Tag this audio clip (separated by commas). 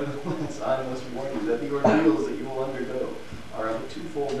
Speech